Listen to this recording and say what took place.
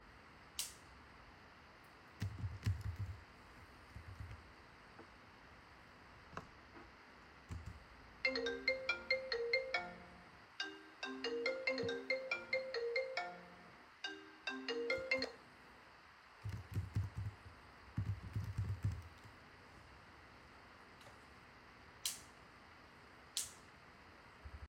I turned on the light and started typing on the keyboard. While typing I scrolled the mouse and received a phone call which produced a ringing sound. After the ringing stopped, I continued typing and toggled the light switch again.